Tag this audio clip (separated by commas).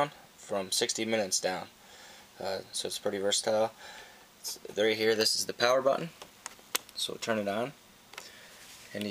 Speech, Tick, Tick-tock